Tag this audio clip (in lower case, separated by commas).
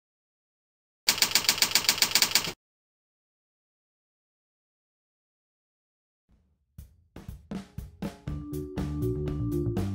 silence, music